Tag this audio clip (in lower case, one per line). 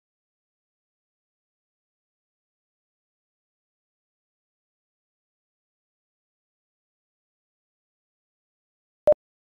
silence